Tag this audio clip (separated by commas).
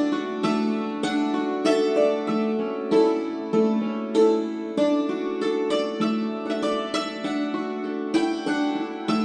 Musical instrument, Music